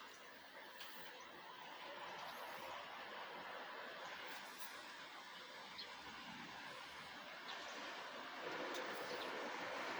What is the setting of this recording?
residential area